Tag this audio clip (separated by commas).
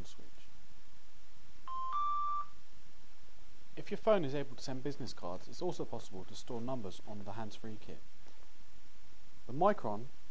Speech